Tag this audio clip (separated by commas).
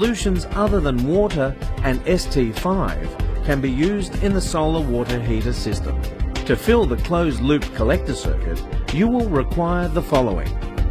Speech, Music